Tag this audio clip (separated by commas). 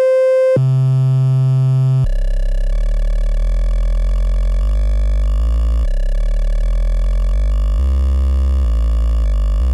inside a small room